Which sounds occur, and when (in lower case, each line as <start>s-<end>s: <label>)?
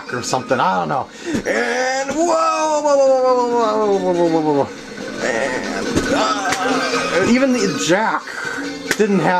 0.0s-9.3s: music
0.1s-1.0s: man speaking
1.0s-1.4s: breathing
1.3s-2.2s: sound effect
1.4s-4.7s: man speaking
2.1s-2.1s: tick
3.8s-9.3s: mechanisms
5.2s-5.7s: man speaking
5.9s-6.0s: tick
6.1s-8.2s: man speaking
6.3s-7.0s: sound effect
6.5s-6.6s: tick
7.5s-7.8s: sound effect
8.2s-8.6s: breathing
8.9s-8.9s: tick